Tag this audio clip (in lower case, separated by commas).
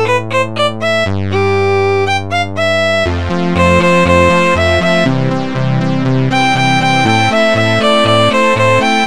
music, fiddle, musical instrument